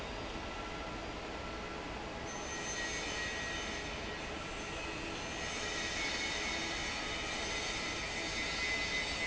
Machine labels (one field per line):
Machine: fan